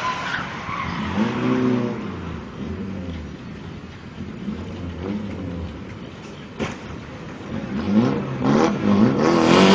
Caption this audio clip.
Engine is running, vehicle is passing by